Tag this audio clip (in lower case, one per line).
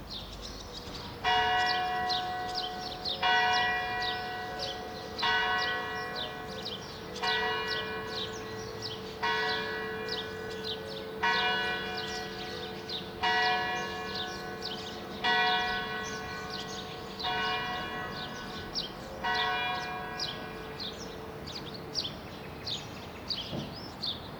bell
church bell